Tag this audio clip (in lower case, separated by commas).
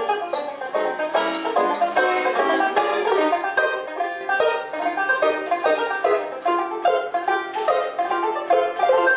musical instrument, guitar, plucked string instrument, music, playing banjo, banjo